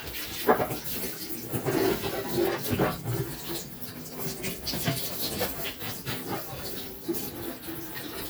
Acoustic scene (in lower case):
kitchen